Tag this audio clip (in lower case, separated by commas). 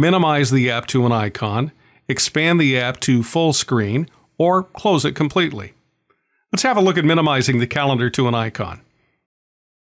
speech